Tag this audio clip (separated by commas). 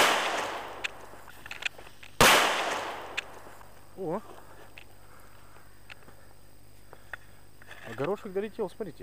Speech, Firecracker